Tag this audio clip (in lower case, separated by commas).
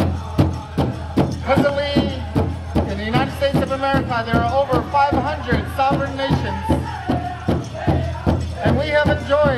music, speech